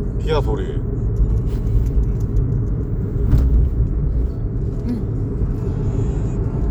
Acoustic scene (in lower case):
car